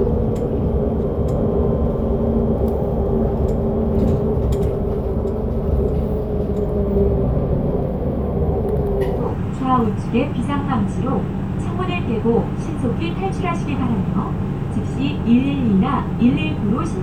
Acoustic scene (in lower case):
bus